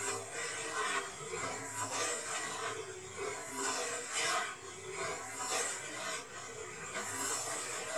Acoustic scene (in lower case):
kitchen